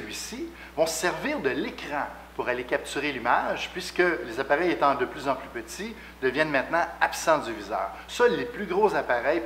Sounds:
speech

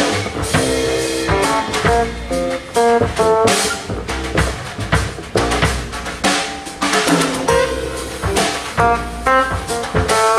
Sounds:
bowed string instrument, rimshot, percussion, drum, double bass, drum kit, bass drum, snare drum, cello

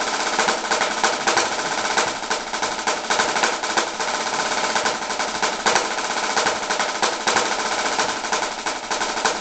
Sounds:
percussion, bass drum, drum roll, drum, snare drum

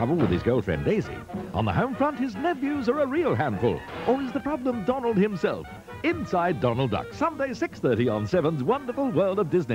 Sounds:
speech, music

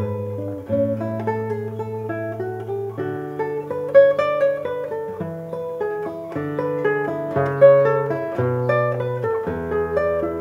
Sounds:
guitar, plucked string instrument, music, musical instrument

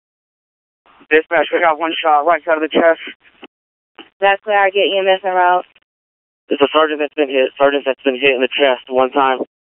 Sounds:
police radio chatter

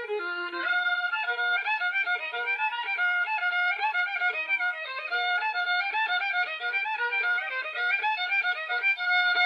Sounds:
fiddle, musical instrument, music

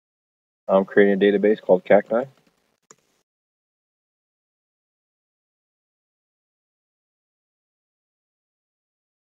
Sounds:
silence, speech

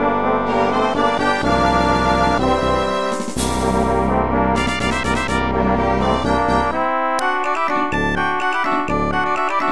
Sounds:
music

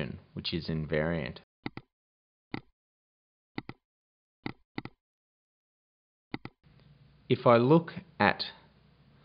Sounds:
speech

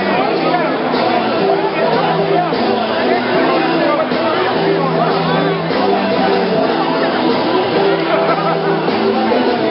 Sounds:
speech, music, crowd

